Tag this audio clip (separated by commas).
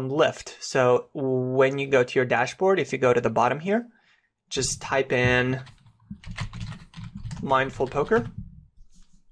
Clicking